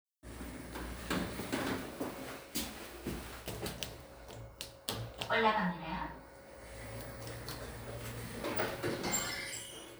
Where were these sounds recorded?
in an elevator